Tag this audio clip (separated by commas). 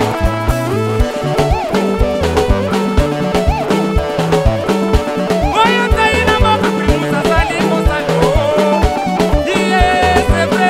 Music